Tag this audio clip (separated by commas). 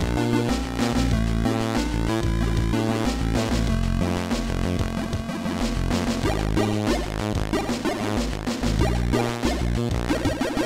Music, Sound effect